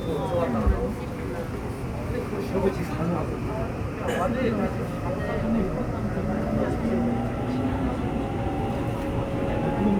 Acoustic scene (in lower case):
subway train